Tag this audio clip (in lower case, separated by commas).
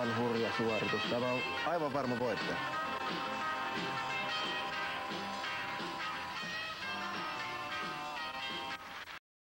music, speech